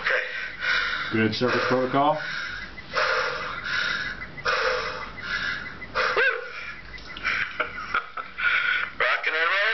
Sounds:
Breathing, Speech

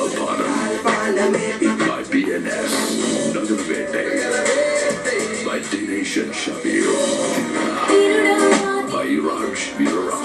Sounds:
Funk, Music, Background music, Speech

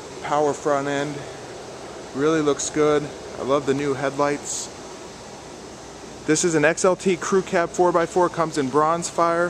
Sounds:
Speech

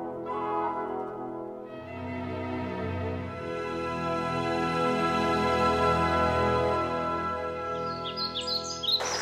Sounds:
Music

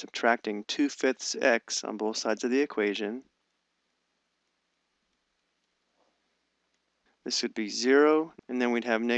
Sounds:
Speech

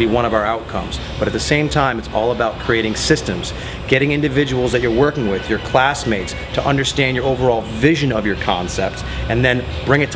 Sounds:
Speech

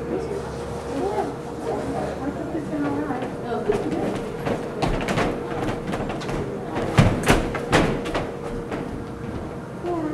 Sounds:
Speech

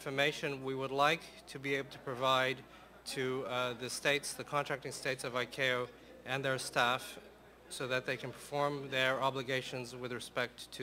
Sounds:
Speech

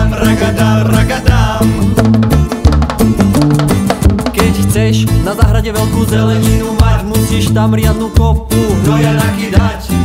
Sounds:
Music

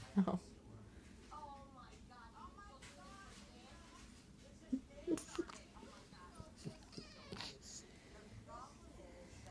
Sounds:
Speech

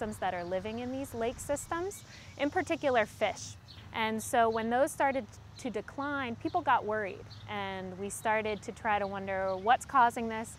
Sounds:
Speech

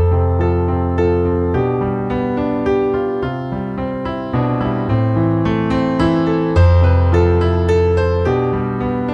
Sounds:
Soundtrack music, Music

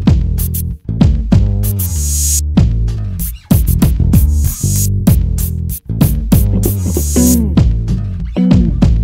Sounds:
Music

